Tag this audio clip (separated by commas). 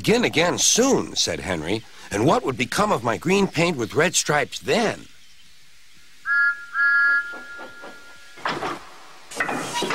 Speech